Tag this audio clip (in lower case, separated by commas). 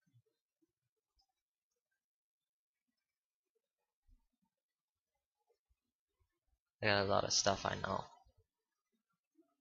speech